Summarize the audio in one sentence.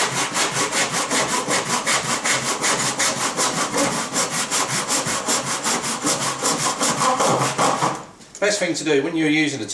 Wood sawing followed by man's voice